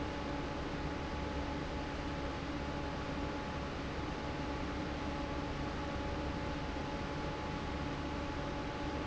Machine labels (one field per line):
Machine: fan